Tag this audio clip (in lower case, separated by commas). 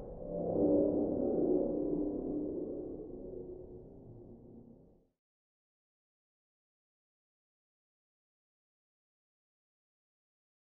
music